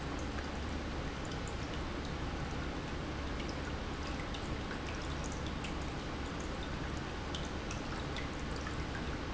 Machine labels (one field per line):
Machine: pump